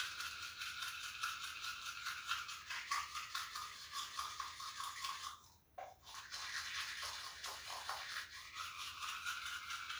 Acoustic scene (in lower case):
restroom